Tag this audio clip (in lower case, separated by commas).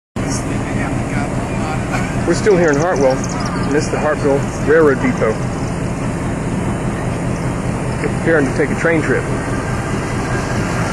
train, speech, vehicle